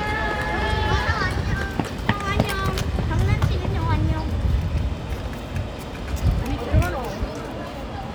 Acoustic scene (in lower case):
residential area